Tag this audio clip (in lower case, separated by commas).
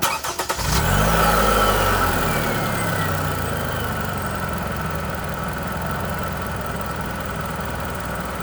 motor vehicle (road), engine, vehicle